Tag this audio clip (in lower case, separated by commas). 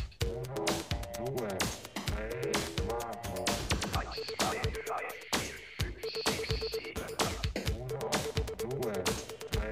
music, ringtone